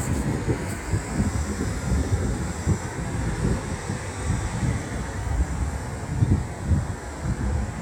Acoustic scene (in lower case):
street